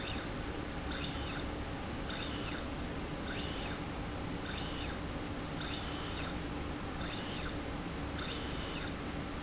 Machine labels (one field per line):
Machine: slide rail